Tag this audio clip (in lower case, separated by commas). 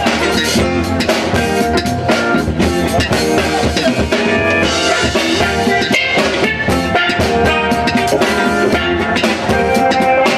percussion, bass drum, drum kit, rimshot, snare drum, drum